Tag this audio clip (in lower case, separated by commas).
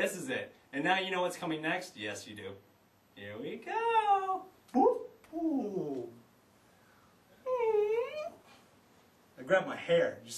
speech